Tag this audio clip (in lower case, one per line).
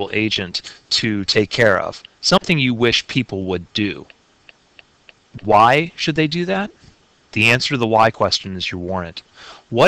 speech